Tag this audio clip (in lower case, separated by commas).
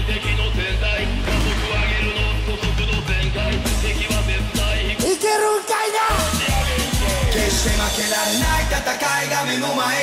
music